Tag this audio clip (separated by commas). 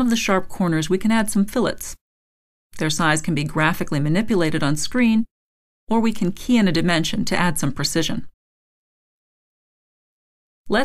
Speech